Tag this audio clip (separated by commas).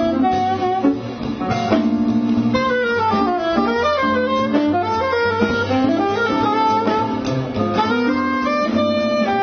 Jazz, Music